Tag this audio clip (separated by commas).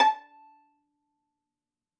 Musical instrument, Music, Bowed string instrument